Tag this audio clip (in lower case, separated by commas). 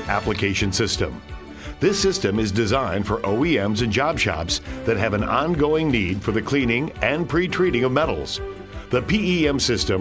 speech, music